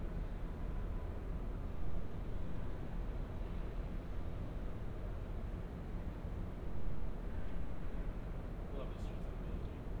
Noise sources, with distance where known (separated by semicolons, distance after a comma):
unidentified human voice, far